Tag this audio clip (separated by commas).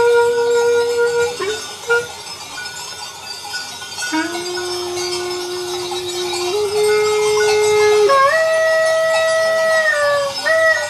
Music, outside, rural or natural